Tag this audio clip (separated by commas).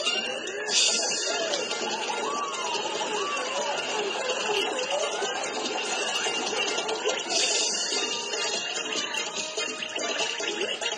Music